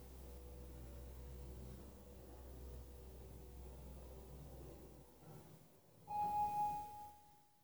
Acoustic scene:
elevator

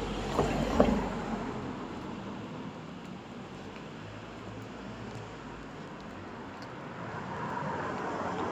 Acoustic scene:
street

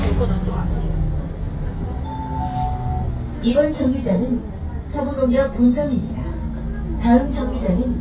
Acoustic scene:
bus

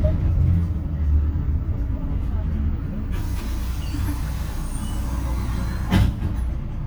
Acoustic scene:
bus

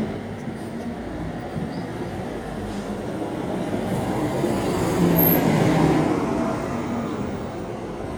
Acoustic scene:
street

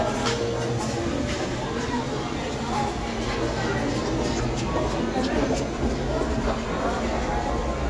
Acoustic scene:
crowded indoor space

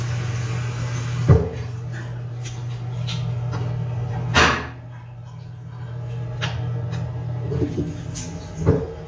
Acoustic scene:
restroom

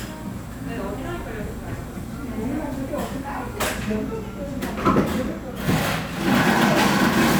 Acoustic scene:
cafe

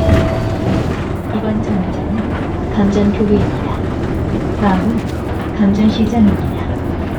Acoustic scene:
bus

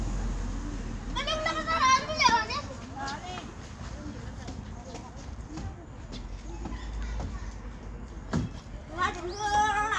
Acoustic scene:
residential area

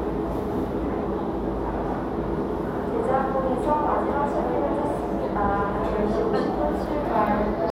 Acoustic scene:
crowded indoor space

